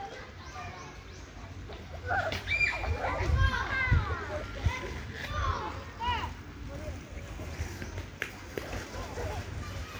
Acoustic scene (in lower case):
park